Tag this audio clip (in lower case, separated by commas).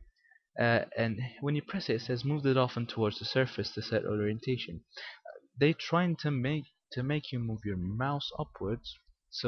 speech